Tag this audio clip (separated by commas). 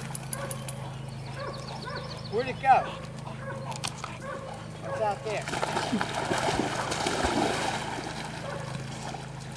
Dog, pets, Animal, outside, rural or natural, Speech